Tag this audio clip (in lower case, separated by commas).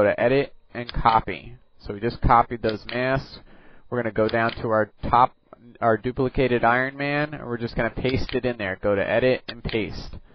speech